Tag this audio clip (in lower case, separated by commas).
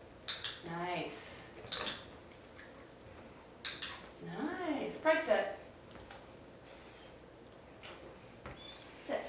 speech